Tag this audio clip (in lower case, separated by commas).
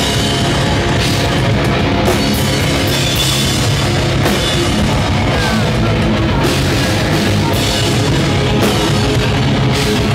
rock music, punk rock, music